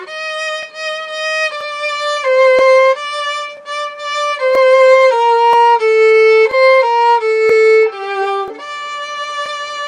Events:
0.0s-9.8s: music
0.6s-0.7s: tick
1.5s-1.6s: tick
2.5s-2.6s: tick
4.5s-4.6s: tick
5.5s-5.5s: tick
6.4s-6.5s: tick
7.5s-7.5s: tick
8.4s-8.5s: tick
9.4s-9.5s: tick

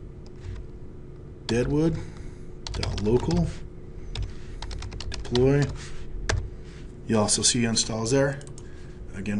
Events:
0.0s-9.3s: mechanisms
0.2s-0.4s: computer keyboard
0.4s-0.6s: surface contact
1.4s-1.5s: computer keyboard
1.5s-2.0s: man speaking
1.9s-2.4s: breathing
2.1s-2.2s: tick
2.6s-3.4s: computer keyboard
2.7s-3.7s: man speaking
3.4s-3.7s: surface contact
4.1s-4.3s: computer keyboard
4.3s-4.6s: surface contact
4.6s-5.4s: computer keyboard
5.3s-5.7s: man speaking
5.6s-5.7s: computer keyboard
5.7s-6.0s: surface contact
6.3s-6.5s: computer keyboard
6.6s-6.9s: surface contact
7.1s-8.4s: man speaking
8.3s-8.6s: clicking
8.6s-9.0s: breathing

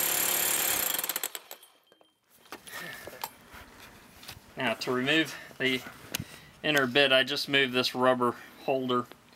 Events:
0.0s-1.6s: drill
0.0s-9.3s: background noise
4.2s-4.4s: generic impact sounds
5.8s-6.6s: surface contact
9.1s-9.2s: tick

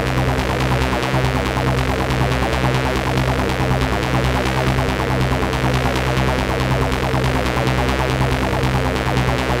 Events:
0.0s-9.6s: sound effect

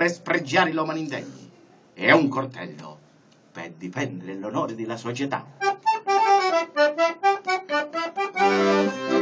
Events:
0.0s-1.5s: man speaking
0.0s-9.2s: mechanisms
1.0s-1.1s: tick
1.2s-1.9s: speech
1.9s-3.0s: man speaking
2.7s-2.8s: tick
3.2s-3.3s: tick
3.5s-5.4s: man speaking
4.5s-4.6s: tick
5.7s-5.8s: tick
7.4s-7.4s: tick

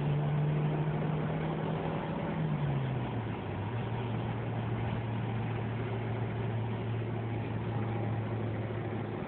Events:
0.0s-9.2s: background noise
0.0s-9.2s: car

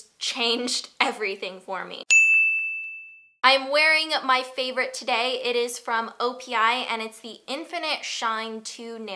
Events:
0.0s-2.0s: background noise
0.2s-0.8s: female speech
1.0s-2.0s: female speech
2.1s-3.4s: ding
2.3s-2.4s: clicking
2.5s-2.6s: clicking
2.8s-2.9s: clicking
3.4s-9.1s: background noise
3.4s-9.1s: female speech

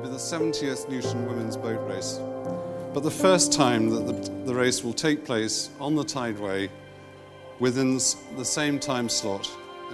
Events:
0.0s-9.9s: music
0.0s-2.2s: male speech
2.8s-3.8s: male speech
4.5s-6.7s: male speech
7.6s-9.6s: male speech

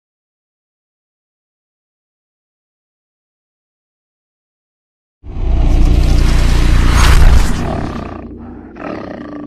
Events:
5.2s-9.4s: sound effect
7.6s-8.2s: roar
8.4s-8.7s: breathing
8.7s-9.4s: roar

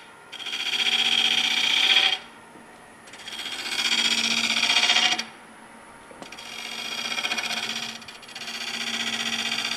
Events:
0.0s-9.7s: mechanisms
0.3s-2.2s: power tool
3.0s-5.3s: power tool
6.2s-9.7s: power tool

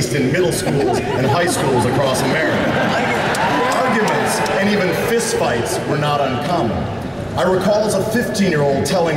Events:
0.0s-9.1s: mechanisms
0.3s-3.8s: laughter
3.3s-5.4s: cheering
5.6s-5.9s: clapping
7.3s-9.1s: male speech

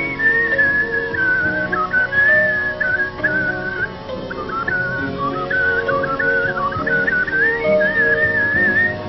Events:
0.0s-3.9s: whistling
0.0s-9.0s: music
4.3s-9.0s: whistling

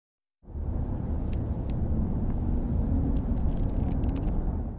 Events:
0.3s-4.7s: wind
1.2s-1.3s: shuffling cards
1.6s-1.7s: shuffling cards
2.2s-2.3s: shuffling cards
3.0s-3.8s: shuffling cards
3.9s-4.2s: shuffling cards

